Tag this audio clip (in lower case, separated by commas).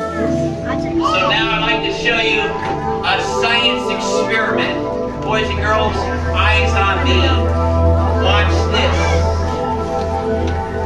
speech, music